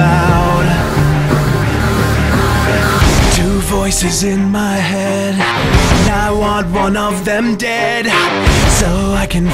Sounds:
Music

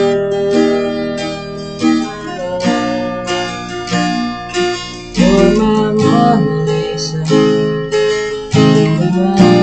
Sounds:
Guitar, Music, Plucked string instrument, Acoustic guitar, Musical instrument

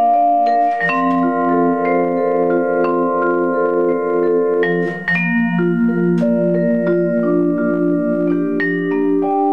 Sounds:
Percussion, Music, xylophone, Marimba

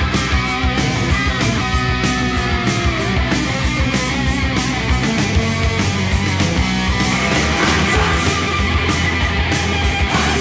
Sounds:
Music, Punk rock, Heavy metal

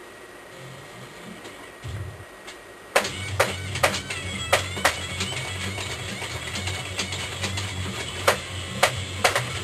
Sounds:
Bass guitar, Plucked string instrument, Musical instrument, Music

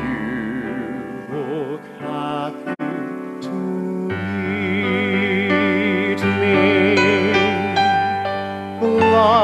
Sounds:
Music

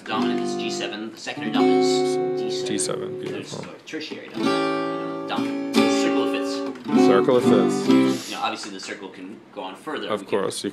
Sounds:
Musical instrument, Plucked string instrument, Guitar, Music, Speech

